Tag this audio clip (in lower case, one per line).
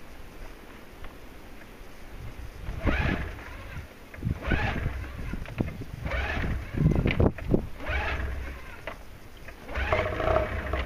outside, rural or natural
vehicle